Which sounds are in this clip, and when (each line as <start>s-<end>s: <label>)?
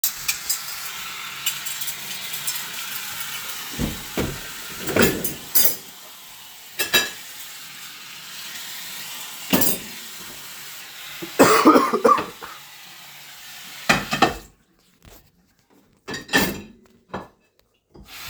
0.0s-0.8s: cutlery and dishes
0.0s-14.6s: running water
1.4s-4.4s: cutlery and dishes
4.8s-6.2s: cutlery and dishes
6.7s-7.3s: cutlery and dishes
9.3s-9.9s: cutlery and dishes
13.6s-14.6s: cutlery and dishes
16.0s-17.4s: cutlery and dishes
17.9s-18.3s: running water